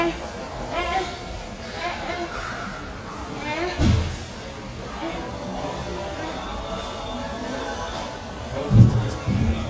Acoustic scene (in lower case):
crowded indoor space